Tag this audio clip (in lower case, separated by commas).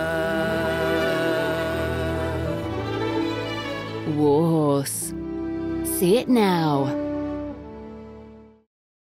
speech, music